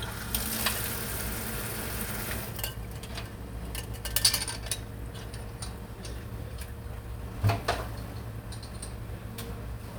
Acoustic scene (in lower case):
kitchen